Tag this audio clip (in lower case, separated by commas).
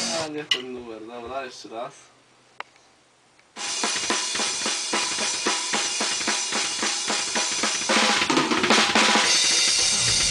rimshot, snare drum, heavy metal, speech, drum kit, drum